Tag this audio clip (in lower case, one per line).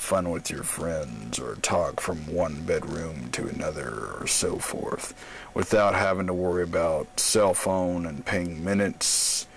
speech